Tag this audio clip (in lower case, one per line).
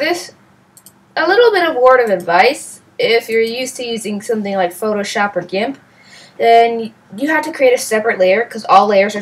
speech